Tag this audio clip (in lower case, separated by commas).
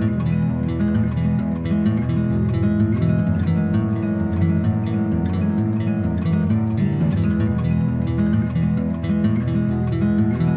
music